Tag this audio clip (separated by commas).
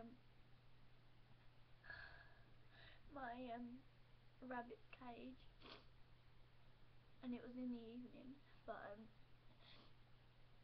Speech